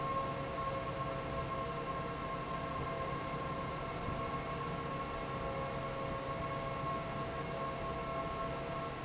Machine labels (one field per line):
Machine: fan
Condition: normal